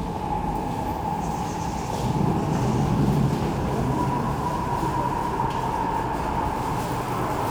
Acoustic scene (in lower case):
subway station